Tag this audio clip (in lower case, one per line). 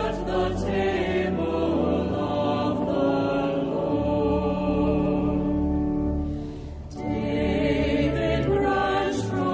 music